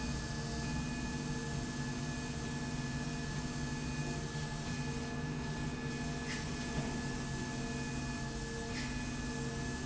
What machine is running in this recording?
slide rail